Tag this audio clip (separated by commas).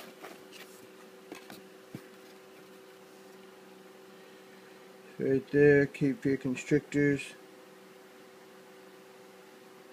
Speech, inside a small room